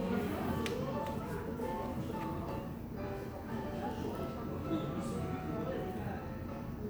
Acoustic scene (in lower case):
cafe